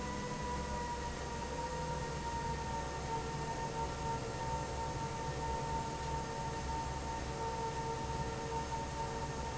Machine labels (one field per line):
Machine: fan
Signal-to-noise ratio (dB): -6 dB